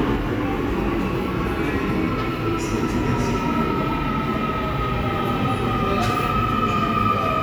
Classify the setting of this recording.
subway station